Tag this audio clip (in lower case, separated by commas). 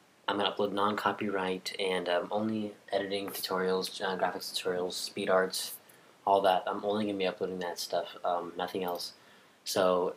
speech